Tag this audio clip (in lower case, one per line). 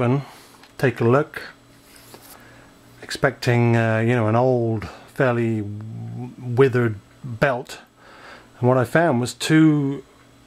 speech